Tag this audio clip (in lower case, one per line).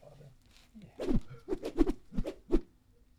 whoosh